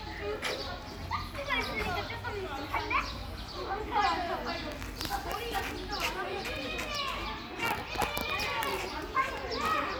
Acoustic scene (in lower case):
park